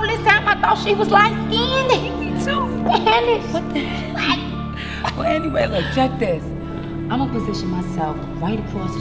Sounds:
Speech, Music

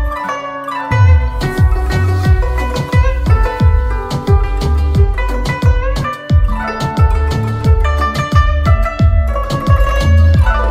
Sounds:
playing zither

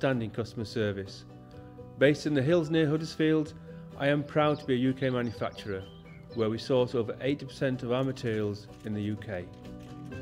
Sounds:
Speech, Music

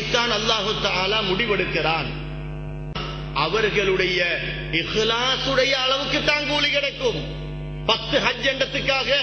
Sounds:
Male speech, Speech, Narration

